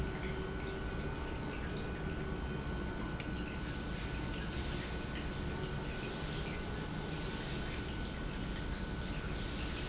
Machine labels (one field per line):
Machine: pump